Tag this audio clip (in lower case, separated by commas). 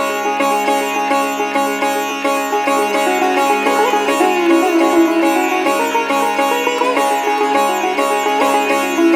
playing sitar